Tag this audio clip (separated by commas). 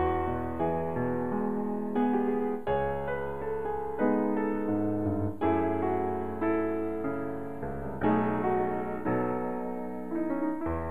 Piano, Music, Musical instrument, Keyboard (musical), Electric piano